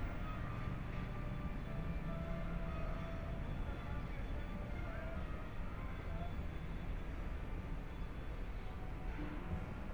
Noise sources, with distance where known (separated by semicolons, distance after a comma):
music from an unclear source, far